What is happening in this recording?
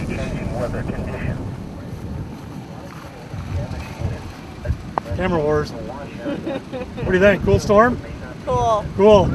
White noise and rustling followed by speech and brief laughter